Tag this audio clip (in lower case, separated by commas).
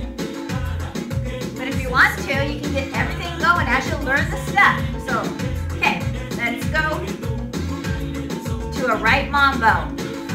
exciting music, music, speech